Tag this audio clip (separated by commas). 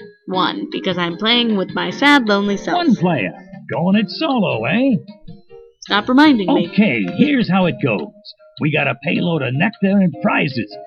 Speech, Music